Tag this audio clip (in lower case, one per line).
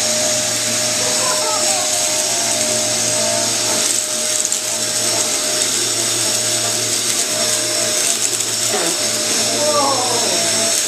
vacuum cleaner